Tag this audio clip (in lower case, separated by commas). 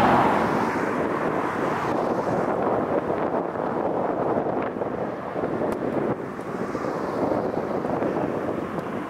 airplane flyby